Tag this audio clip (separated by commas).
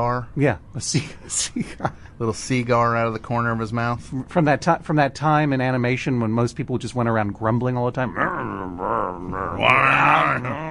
inside a small room, Speech